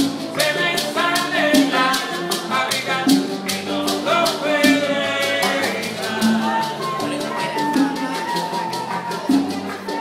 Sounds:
music, speech

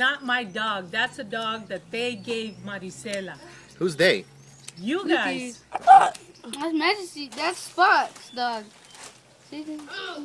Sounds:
speech

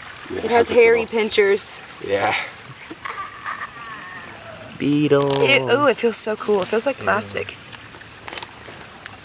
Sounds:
speech

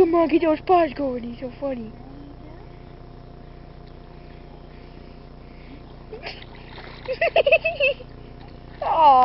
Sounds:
speech

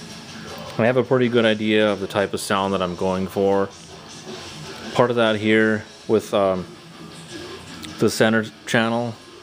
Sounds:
music, speech

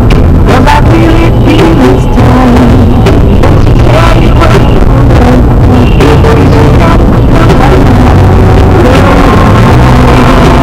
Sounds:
motor vehicle (road), car passing by, music, car, vehicle

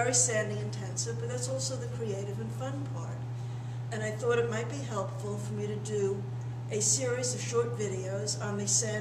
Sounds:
speech

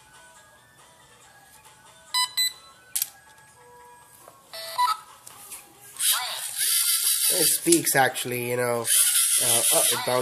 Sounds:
inside a small room, music, speech

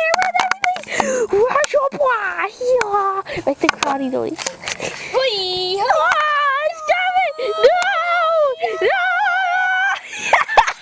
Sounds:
speech

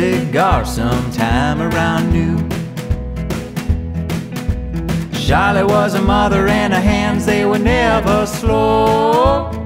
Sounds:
music, funny music

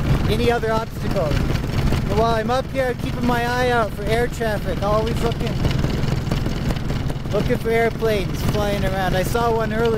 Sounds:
speech

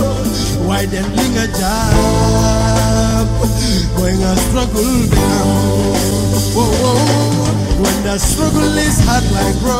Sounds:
music

